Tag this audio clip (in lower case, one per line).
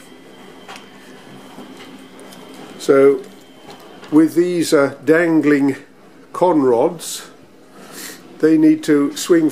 speech